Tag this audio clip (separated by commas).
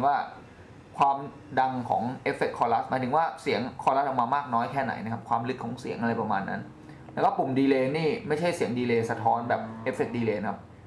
Speech